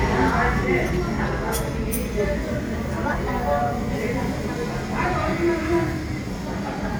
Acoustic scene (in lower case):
crowded indoor space